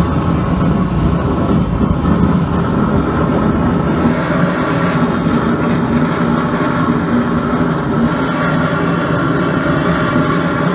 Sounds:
blowtorch igniting

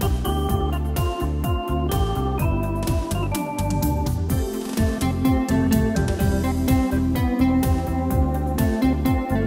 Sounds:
music

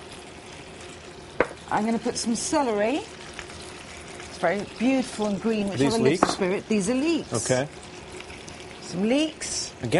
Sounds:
frying (food)
speech

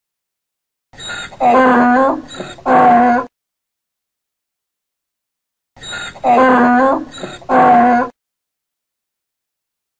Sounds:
ass braying

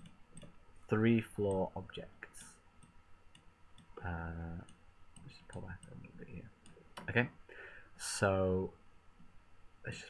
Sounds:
speech

